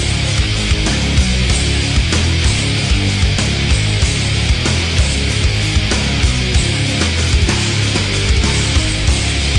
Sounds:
Music, inside a large room or hall

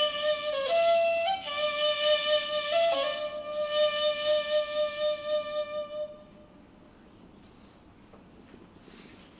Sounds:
Music, Musical instrument, inside a large room or hall

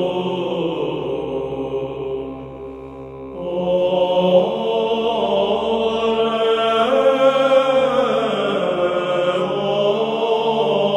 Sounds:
Music, Mantra

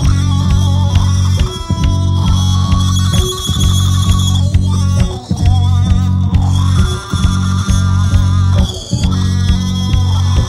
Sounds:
Music

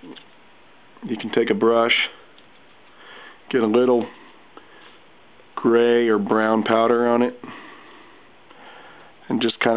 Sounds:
Speech

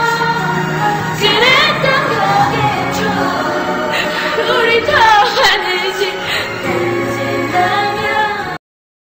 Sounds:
Music, Female singing

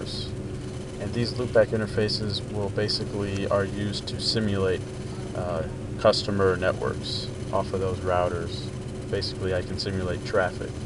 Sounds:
Speech, Static

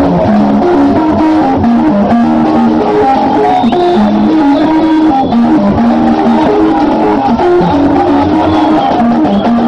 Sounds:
Music

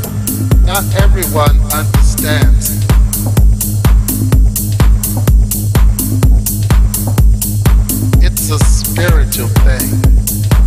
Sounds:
Music

